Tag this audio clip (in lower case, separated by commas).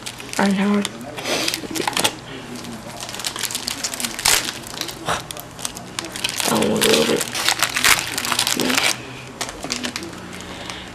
crackle